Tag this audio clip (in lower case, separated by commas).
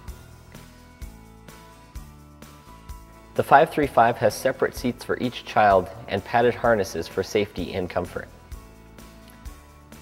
music, speech